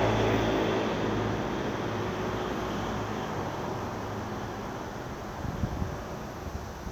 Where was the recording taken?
on a street